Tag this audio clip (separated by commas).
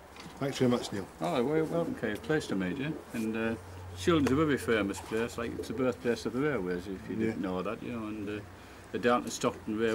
Speech